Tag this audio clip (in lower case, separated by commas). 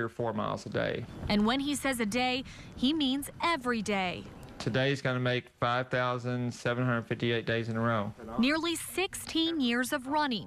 speech, outside, rural or natural, run